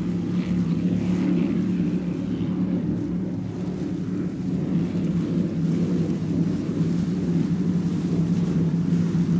A speed boat passes by, water splashes